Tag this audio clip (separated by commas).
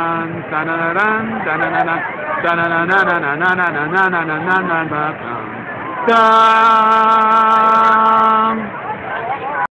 Speech, Male singing